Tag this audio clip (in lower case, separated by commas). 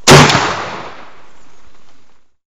gunshot, explosion